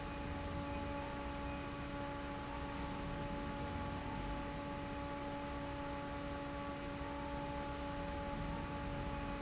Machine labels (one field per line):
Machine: fan